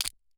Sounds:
Crushing

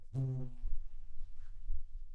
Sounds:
Animal, Insect, Wild animals, Buzz

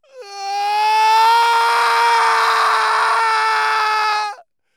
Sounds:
Shout, Human voice, Screaming, Yell

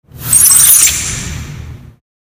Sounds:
Squeak

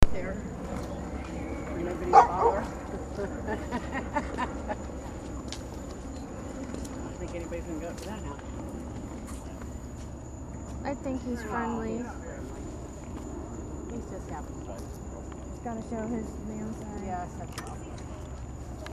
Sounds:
Dog, pets, Animal

